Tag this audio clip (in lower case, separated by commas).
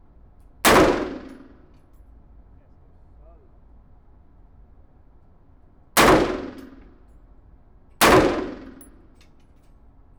explosion, gunfire